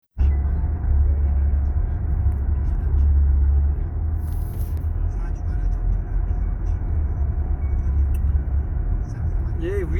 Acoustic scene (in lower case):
car